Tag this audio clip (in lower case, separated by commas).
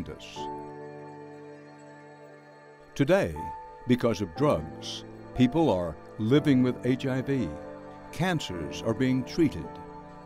music, speech